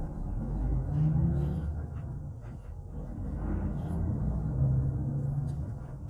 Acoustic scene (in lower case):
bus